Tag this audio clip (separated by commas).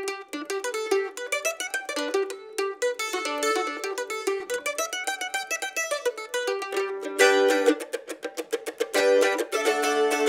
playing mandolin